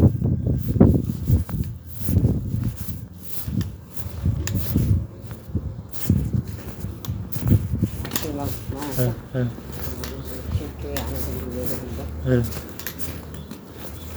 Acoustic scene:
residential area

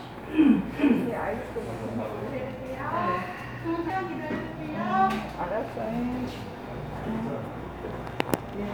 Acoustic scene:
cafe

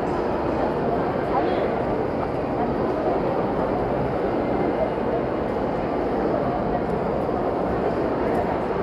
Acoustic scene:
crowded indoor space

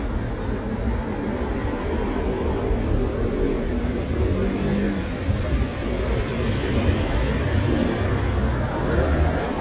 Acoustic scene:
street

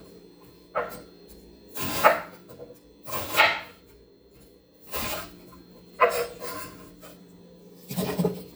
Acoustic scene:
kitchen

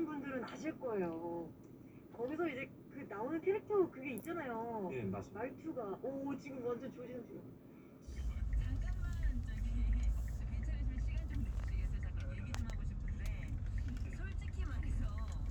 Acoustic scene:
car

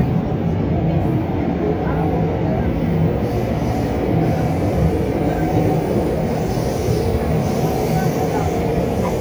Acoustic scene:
subway train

